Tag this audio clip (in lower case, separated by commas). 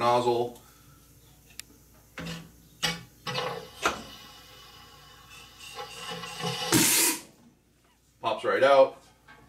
inside a small room, speech